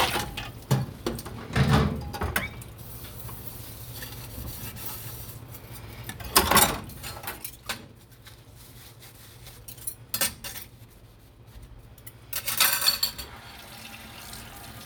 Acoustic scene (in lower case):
kitchen